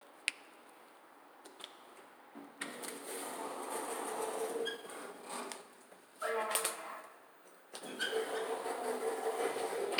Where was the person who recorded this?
in an elevator